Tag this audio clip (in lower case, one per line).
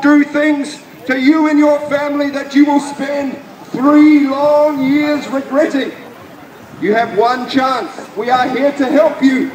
speech
male speech
monologue